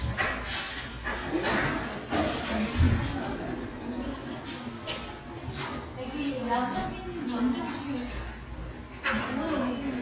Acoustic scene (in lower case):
crowded indoor space